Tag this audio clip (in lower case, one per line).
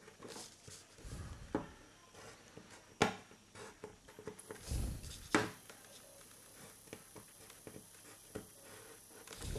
inside a small room